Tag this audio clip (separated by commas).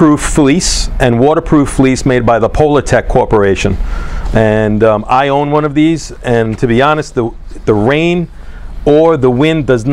Speech